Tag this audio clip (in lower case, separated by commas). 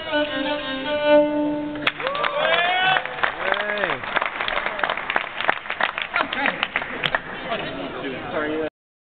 musical instrument, speech, fiddle, music